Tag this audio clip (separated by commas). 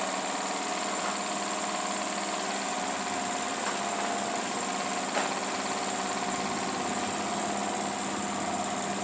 Medium engine (mid frequency), Idling, Engine